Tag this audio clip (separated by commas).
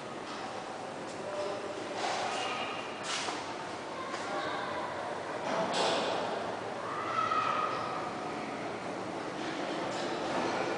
Speech